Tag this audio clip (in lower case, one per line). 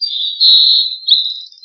bird song
wild animals
animal
bird